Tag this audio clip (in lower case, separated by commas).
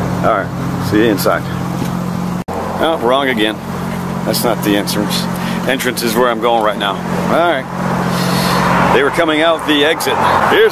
outside, urban or man-made, speech